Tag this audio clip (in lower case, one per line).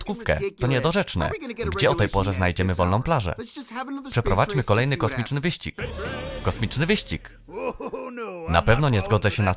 speech